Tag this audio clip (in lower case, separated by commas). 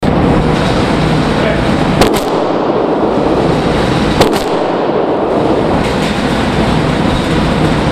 gunshot, explosion